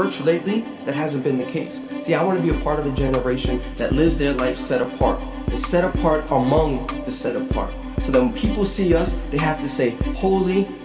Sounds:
Speech, Music

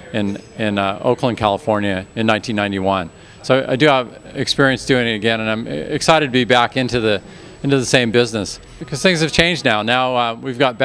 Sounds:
Speech

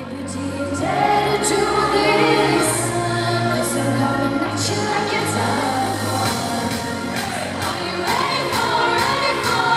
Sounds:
Music

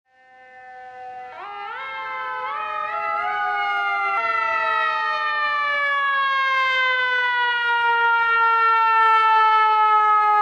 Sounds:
Siren, outside, urban or man-made, Truck, Vehicle

